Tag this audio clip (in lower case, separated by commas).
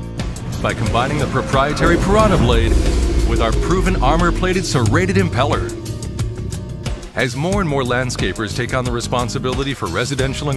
speech, music